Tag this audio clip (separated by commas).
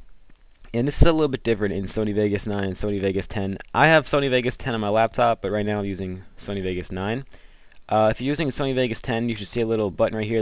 Speech